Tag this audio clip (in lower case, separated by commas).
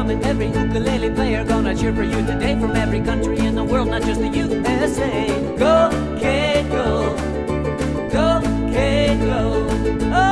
music, ukulele